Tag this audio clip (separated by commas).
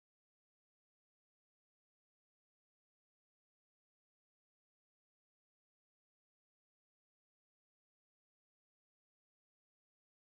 Silence